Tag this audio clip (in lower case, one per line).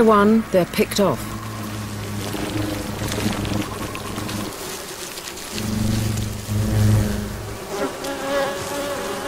wasp